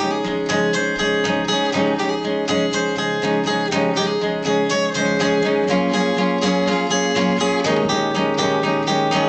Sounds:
strum
guitar
music
acoustic guitar

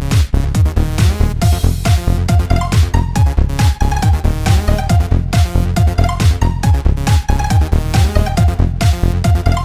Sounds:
music
electronic music
techno

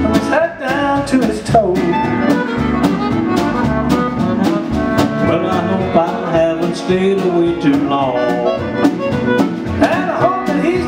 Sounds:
music
male singing

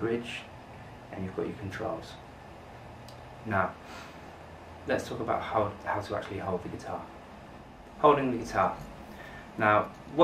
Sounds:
speech

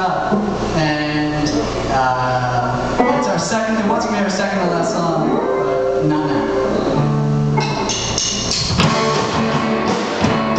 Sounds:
speech
music

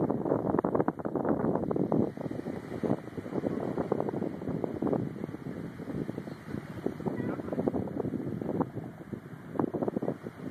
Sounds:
speech

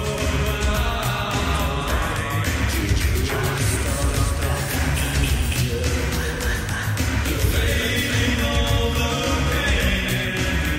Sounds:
music
middle eastern music
funk

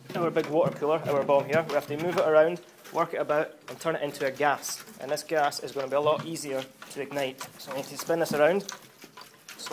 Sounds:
speech

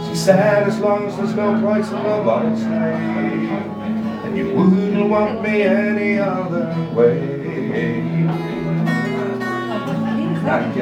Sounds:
music

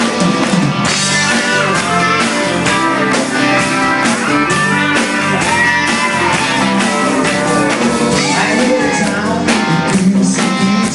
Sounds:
independent music
country
bluegrass
music

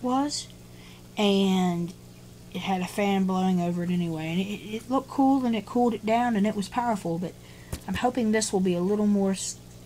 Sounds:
speech

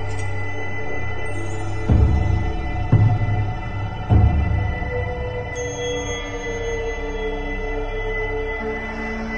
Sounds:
music

